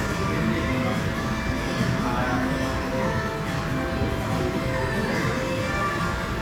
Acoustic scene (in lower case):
cafe